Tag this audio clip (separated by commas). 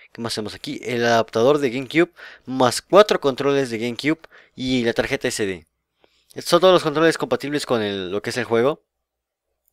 Speech